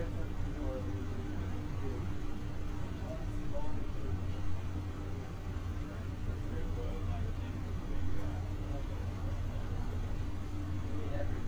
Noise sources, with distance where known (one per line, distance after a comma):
engine of unclear size
person or small group talking